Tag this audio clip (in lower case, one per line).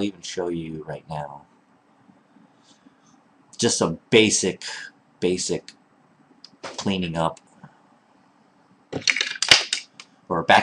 inside a small room
speech